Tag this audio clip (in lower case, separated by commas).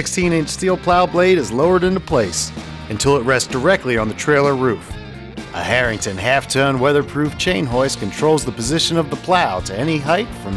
music, speech